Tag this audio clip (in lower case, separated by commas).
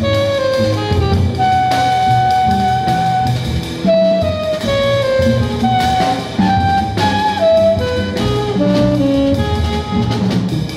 jazz, music